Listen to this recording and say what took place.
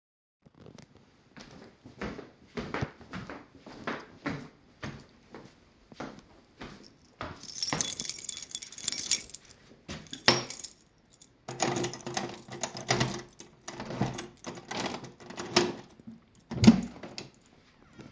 I walked towards the door dangling my keychain. Then i unlocked the door using the keys and afterwards opened the door.